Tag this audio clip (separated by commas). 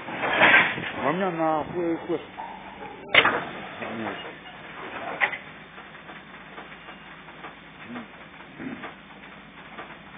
Vehicle, Train, Speech, Railroad car, Rail transport